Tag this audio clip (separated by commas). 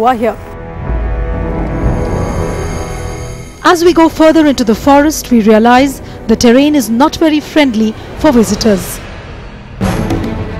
Music, outside, rural or natural, Speech